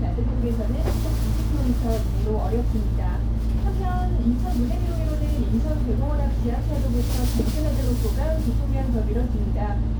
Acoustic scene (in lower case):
bus